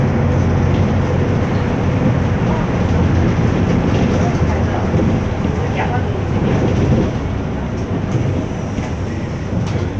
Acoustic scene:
bus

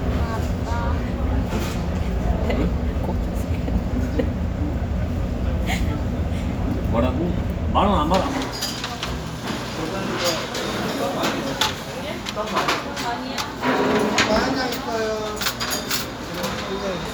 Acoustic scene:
restaurant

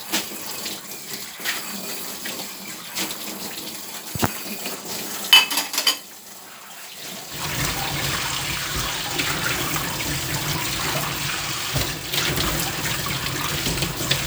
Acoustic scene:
kitchen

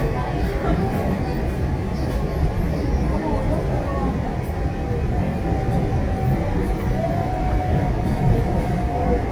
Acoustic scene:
subway train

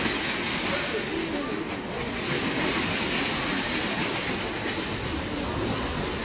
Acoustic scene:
crowded indoor space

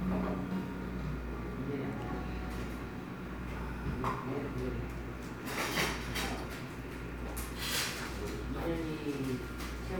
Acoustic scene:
cafe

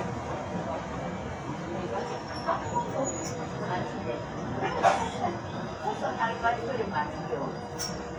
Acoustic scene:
subway train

